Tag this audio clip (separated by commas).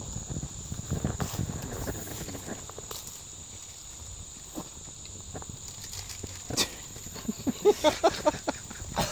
Speech